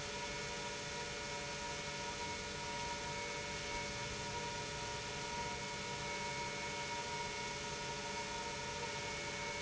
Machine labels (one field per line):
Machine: pump